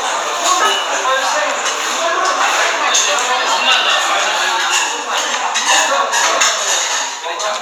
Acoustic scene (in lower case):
restaurant